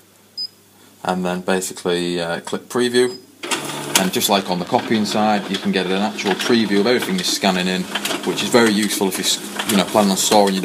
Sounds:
Printer, Speech

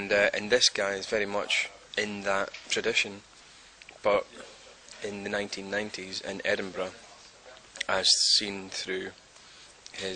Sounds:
Speech

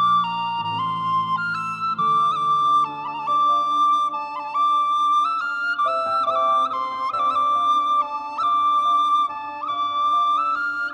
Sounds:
Music

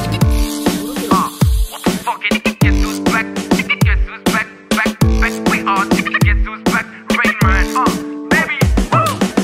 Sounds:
Music

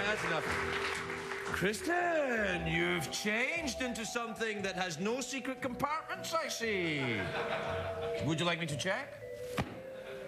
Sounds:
Speech, Music

